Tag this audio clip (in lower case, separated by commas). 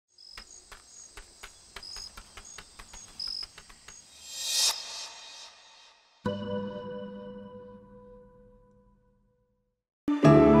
swish